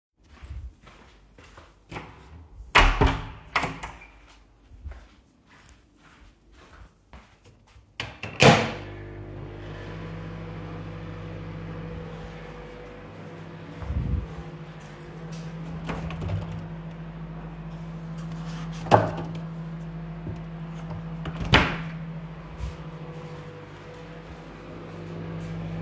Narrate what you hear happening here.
I closed the kitchen door, turned on microvawe and opened the fridge